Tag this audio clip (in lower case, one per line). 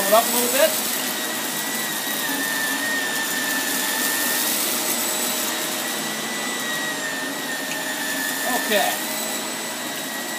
vacuum cleaner